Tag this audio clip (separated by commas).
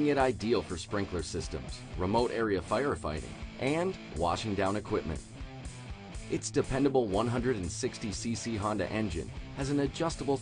pumping water